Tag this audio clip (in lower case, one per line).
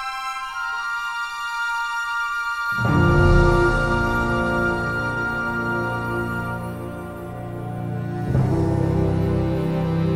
theme music